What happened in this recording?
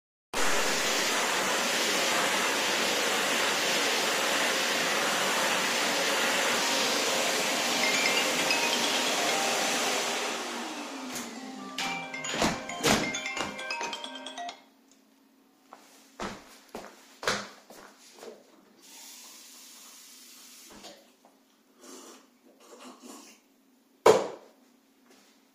I vacuum the room. The phone rings, so I stop the vacuum and walk to the phone. Then I walk to the sink, run tap water, drink water from a cup, and put the cup on the table.